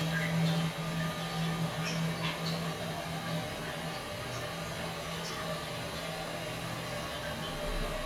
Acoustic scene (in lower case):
restroom